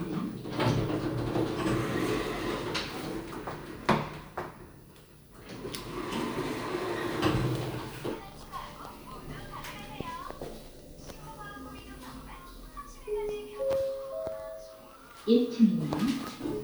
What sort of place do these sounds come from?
elevator